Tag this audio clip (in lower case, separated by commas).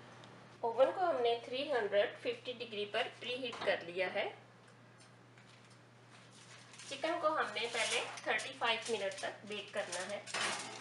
speech